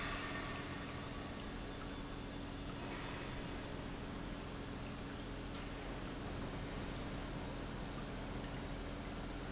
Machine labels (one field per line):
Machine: pump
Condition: normal